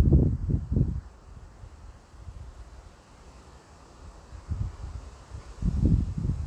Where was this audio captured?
in a residential area